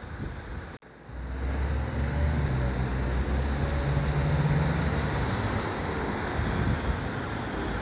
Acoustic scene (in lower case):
street